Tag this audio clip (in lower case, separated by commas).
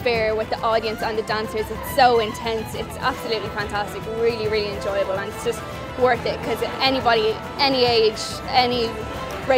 music, speech